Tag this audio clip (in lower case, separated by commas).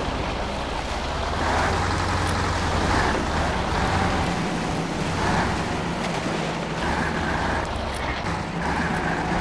vehicle, truck, outside, rural or natural